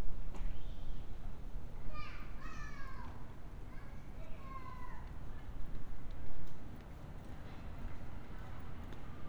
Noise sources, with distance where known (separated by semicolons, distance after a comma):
person or small group shouting, far